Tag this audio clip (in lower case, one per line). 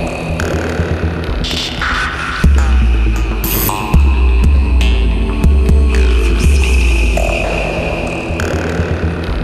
music